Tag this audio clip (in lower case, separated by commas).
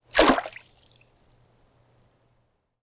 liquid, splash, water